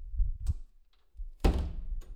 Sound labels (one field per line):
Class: door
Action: closing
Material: metal